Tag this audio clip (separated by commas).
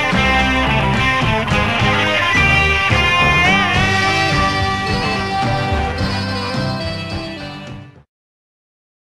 Musical instrument, Plucked string instrument, Strum, Guitar, Electric guitar, Music